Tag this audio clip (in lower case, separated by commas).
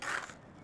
skateboard, vehicle